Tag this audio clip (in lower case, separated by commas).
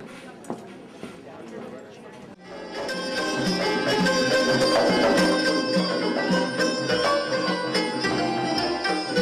music, speech